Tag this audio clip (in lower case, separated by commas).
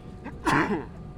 sneeze, respiratory sounds